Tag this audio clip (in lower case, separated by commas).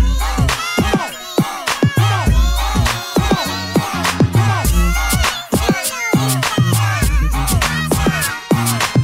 music, hip hop music